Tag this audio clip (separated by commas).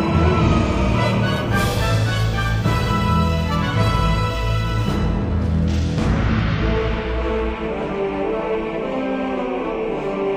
Music